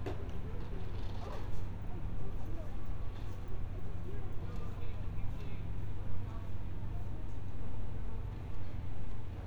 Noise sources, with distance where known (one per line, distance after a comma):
background noise